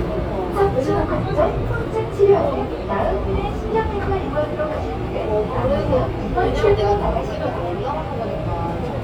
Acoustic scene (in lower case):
subway train